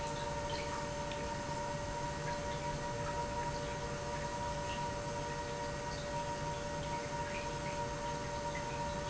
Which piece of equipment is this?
pump